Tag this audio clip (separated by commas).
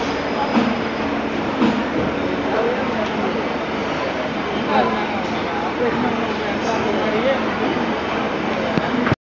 Speech